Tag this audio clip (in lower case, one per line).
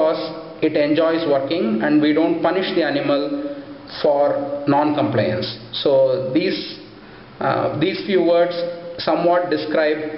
speech